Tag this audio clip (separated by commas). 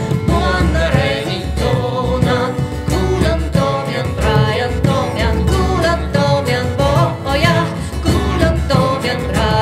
Plucked string instrument, Musical instrument, Harp, Music